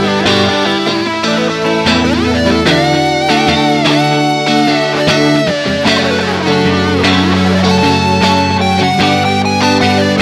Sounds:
Music

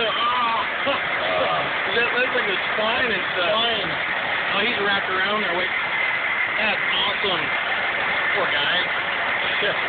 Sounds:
Idling, Speech

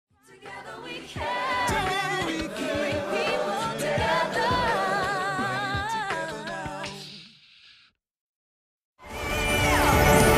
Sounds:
Singing

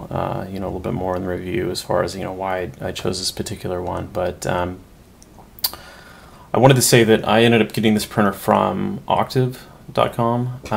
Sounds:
Speech

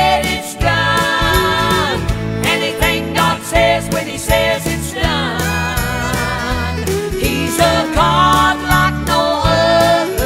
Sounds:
Christmas music

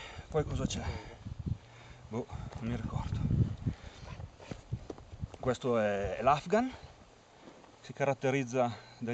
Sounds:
Speech

